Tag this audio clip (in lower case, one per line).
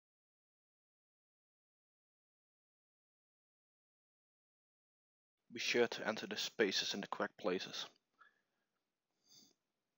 silence
speech